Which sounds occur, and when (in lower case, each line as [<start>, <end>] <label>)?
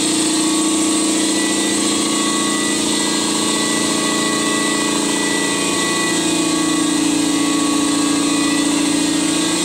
[0.00, 9.64] mechanisms